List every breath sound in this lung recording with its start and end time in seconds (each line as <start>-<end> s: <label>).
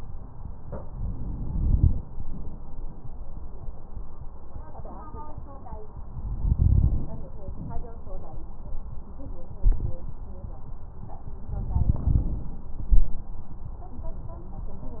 0.76-1.96 s: inhalation
6.39-7.06 s: inhalation
6.39-7.06 s: crackles
11.48-12.72 s: inhalation
11.48-12.72 s: crackles